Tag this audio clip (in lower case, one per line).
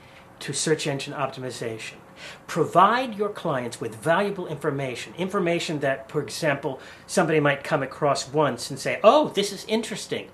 speech